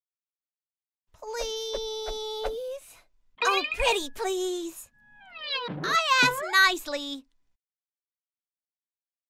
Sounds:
speech

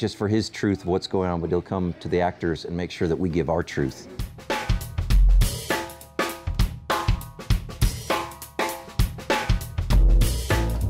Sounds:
drum, percussion, drum kit, bass drum, snare drum, rimshot

